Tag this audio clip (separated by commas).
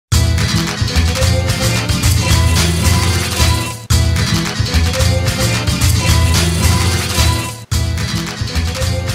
Maraca, Music